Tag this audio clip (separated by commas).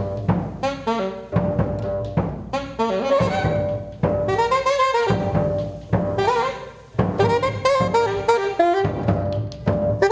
Pizzicato